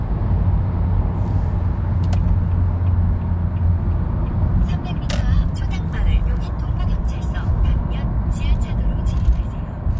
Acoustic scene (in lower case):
car